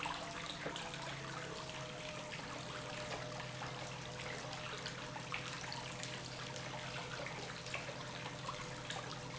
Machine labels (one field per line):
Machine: pump